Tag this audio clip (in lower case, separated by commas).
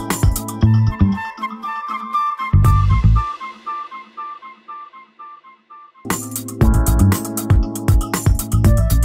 music